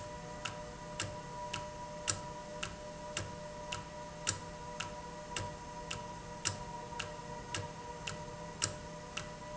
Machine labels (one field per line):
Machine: valve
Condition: normal